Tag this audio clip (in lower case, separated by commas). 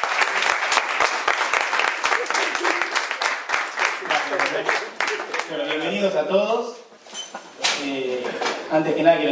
speech, ping